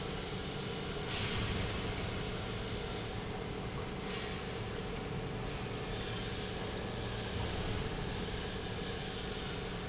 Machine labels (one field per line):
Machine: pump